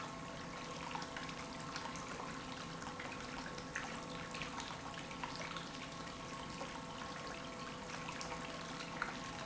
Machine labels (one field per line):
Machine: pump